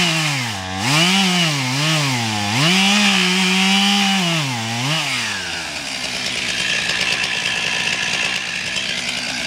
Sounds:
chainsawing trees

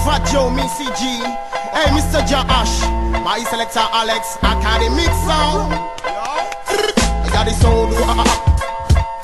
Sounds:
Music, Sound effect

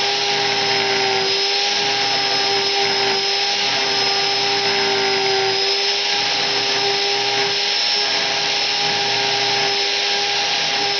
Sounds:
Engine, Medium engine (mid frequency), revving

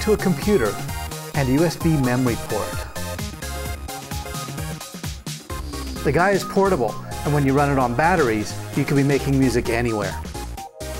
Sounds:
Music, Speech

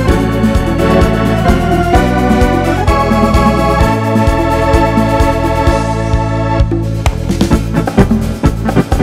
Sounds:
playing electronic organ

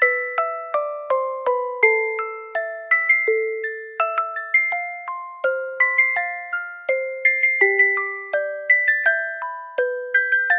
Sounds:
Music

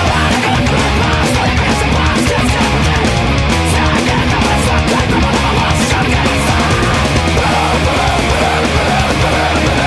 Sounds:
Music, Musical instrument, Guitar, Strum

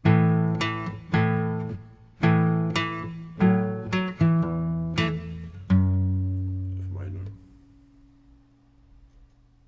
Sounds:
Music, Guitar, Plucked string instrument, Musical instrument, Acoustic guitar, Strum

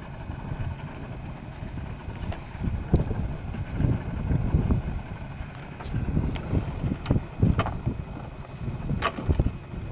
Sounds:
sailing, sailing ship

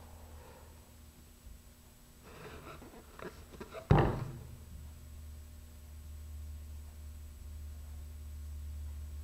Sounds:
inside a small room

